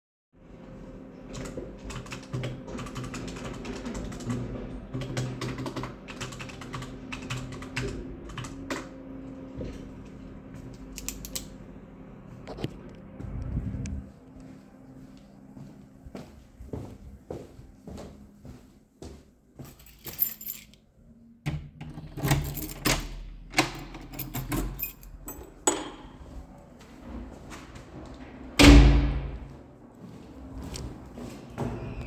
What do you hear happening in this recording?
I am typing on my keyboard with the sound of worker machinery outside, I click my pen then get up and leave the living room with my recording device in hand and walk through the hallway, I use my keys to unlock the door, walk outside and then close the door, the buildings elevator can be heard at the end.